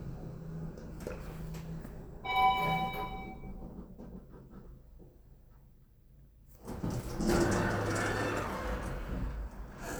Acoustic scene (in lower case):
elevator